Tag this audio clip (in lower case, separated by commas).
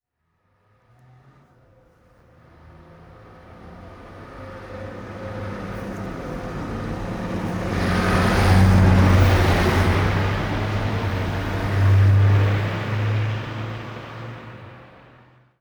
motor vehicle (road), vehicle, car passing by, car